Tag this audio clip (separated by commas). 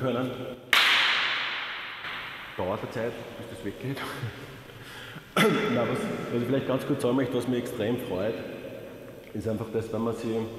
Speech